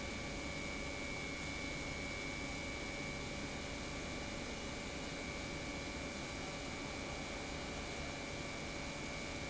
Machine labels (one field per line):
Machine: pump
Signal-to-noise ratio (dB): 0 dB